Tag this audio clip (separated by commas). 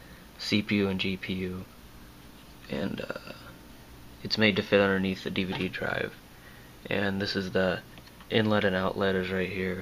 Speech